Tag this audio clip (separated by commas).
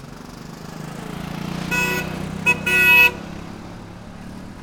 Vehicle, Motor vehicle (road)